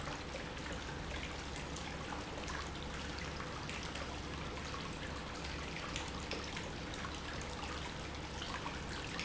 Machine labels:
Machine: pump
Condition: normal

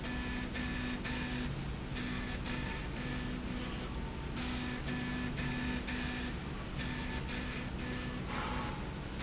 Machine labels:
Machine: slide rail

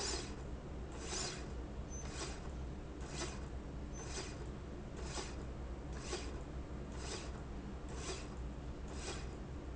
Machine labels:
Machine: slide rail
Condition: normal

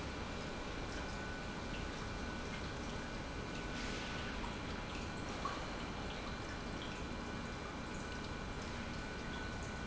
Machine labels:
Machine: pump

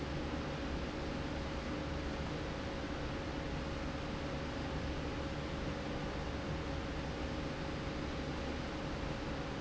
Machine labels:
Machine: slide rail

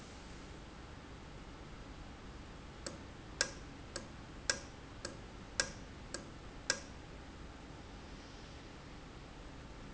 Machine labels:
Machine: valve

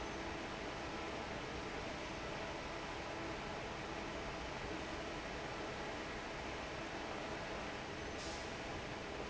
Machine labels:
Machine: fan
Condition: normal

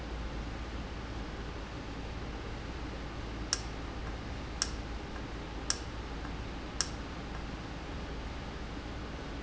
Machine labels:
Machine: valve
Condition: normal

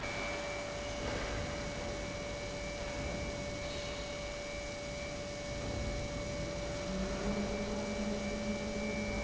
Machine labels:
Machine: pump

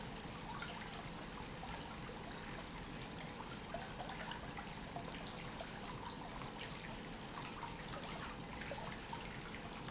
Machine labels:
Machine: pump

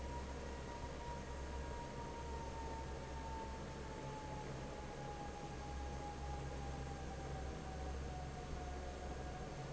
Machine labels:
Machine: fan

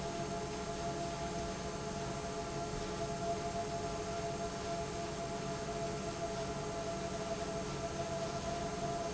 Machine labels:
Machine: pump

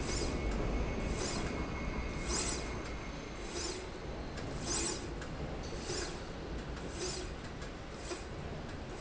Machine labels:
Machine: slide rail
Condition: normal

